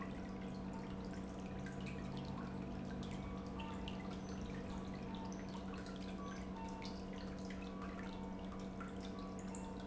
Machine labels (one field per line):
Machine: pump